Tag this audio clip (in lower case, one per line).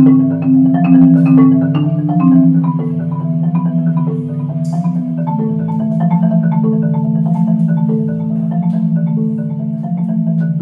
playing marimba